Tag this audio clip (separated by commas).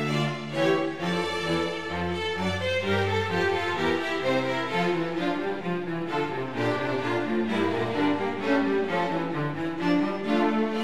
Soundtrack music, Music